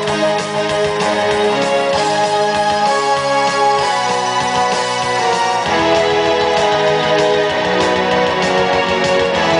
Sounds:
Music

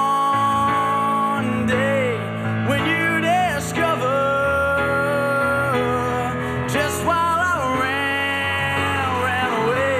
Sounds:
Music

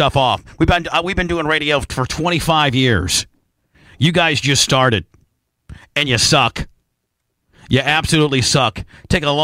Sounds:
Speech

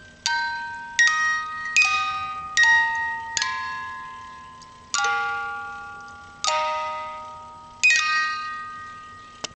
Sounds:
Music

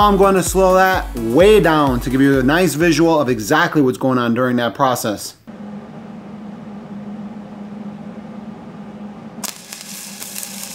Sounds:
arc welding

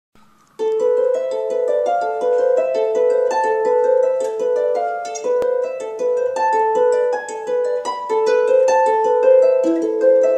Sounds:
playing harp

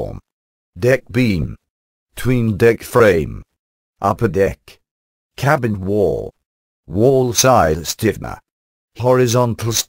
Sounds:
Speech

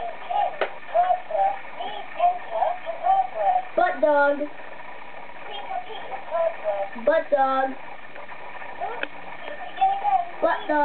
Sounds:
Speech

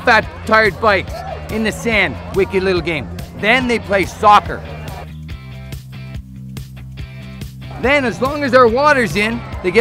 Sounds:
Speech, Music

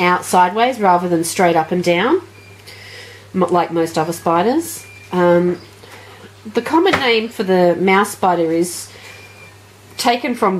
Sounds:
Speech

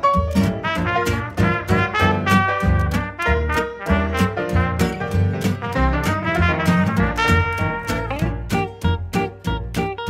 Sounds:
Swing music, Music

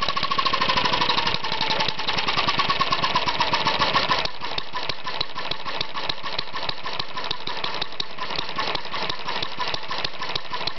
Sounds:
Engine, Medium engine (mid frequency), Idling

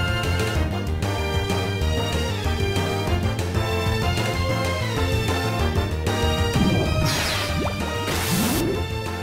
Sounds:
Music

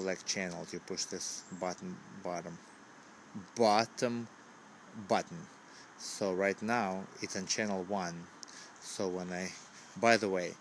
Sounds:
Speech

